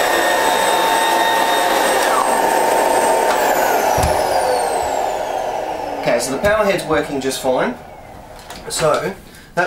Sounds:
speech

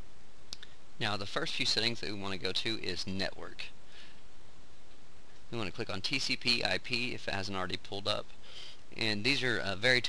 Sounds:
speech

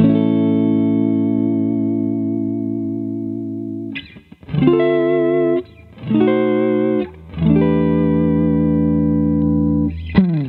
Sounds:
inside a small room
effects unit
music
plucked string instrument
musical instrument
guitar

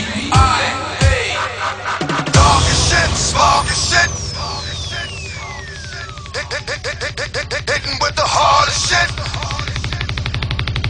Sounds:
music

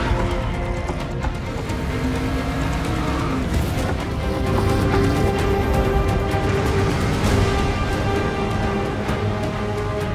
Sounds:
music
car
vehicle

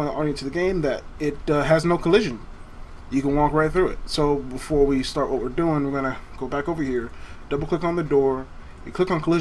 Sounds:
speech

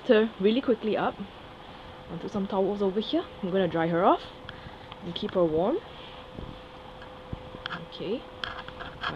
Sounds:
speech

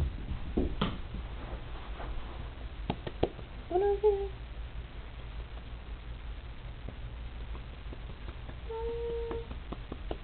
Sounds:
speech

